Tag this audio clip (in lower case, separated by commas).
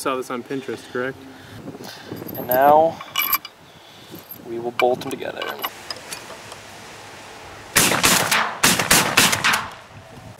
speech